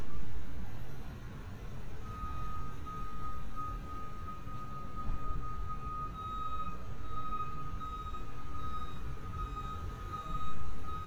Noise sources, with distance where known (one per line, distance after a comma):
reverse beeper, near